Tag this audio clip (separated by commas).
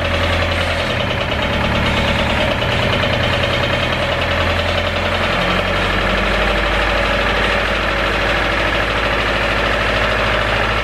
car engine knocking